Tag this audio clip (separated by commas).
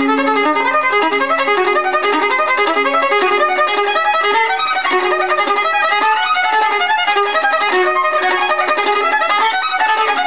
Bowed string instrument, Violin